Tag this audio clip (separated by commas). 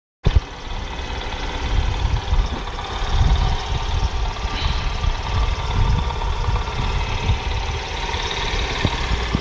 Vehicle, Engine, Idling, Motorcycle